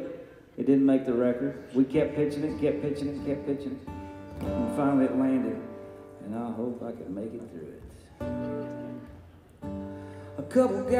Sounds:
Speech, Music

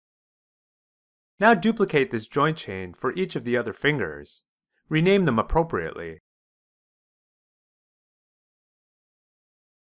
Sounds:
Speech

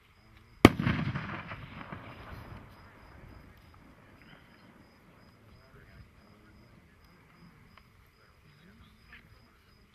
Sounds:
Fireworks

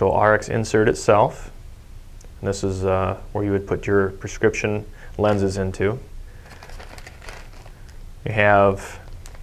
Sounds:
inside a small room, Speech

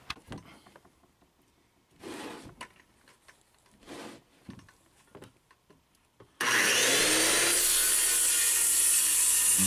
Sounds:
Music

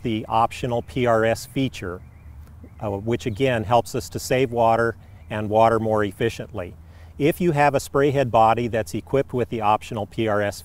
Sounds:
Speech

